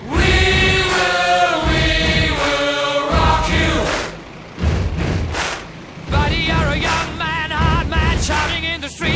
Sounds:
music

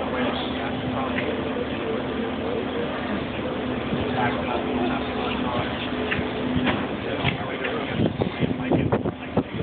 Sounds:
vehicle
speech

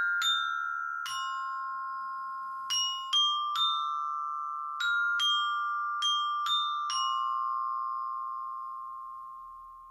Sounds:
playing glockenspiel

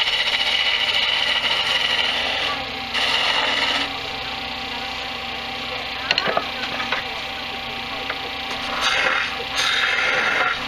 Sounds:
lathe spinning

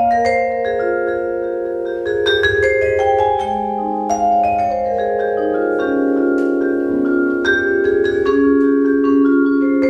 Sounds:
vibraphone
musical instrument
playing vibraphone
music
percussion
classical music

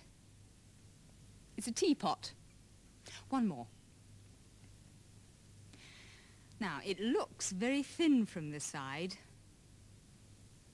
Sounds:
speech

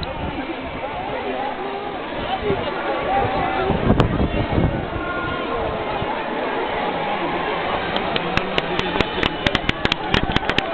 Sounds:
speech

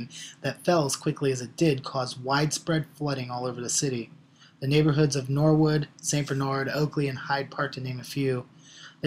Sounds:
speech

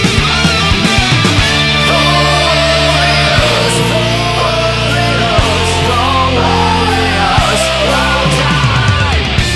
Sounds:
heavy metal

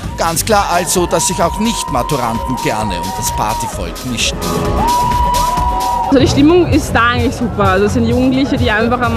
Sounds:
music
speech

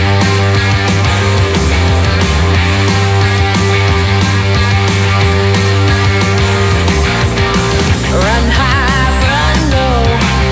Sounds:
music

